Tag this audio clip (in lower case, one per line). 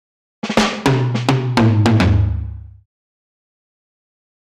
music
drum
musical instrument
percussion